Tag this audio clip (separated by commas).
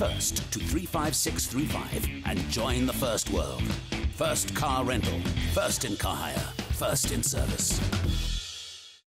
Music, Speech